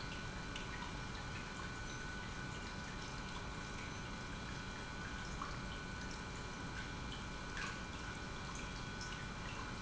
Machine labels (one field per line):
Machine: pump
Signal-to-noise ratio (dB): 6 dB